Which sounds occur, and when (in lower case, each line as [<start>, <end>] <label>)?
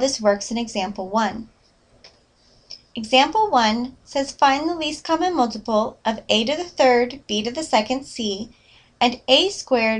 [0.00, 1.44] woman speaking
[0.00, 9.95] mechanisms
[0.96, 1.03] tick
[1.61, 1.79] surface contact
[2.02, 2.15] generic impact sounds
[2.35, 2.68] surface contact
[2.69, 2.77] tick
[2.97, 3.92] woman speaking
[3.01, 3.08] tick
[3.29, 3.38] tick
[4.06, 5.94] woman speaking
[6.09, 7.19] woman speaking
[7.31, 8.52] woman speaking
[8.52, 8.95] breathing